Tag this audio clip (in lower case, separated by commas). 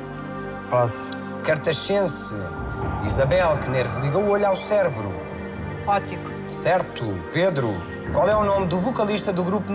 music, speech